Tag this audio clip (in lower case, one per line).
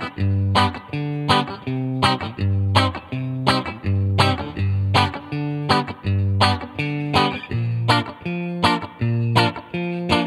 musical instrument
music